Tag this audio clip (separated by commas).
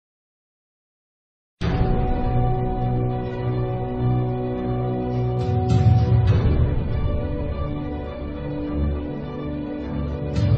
Music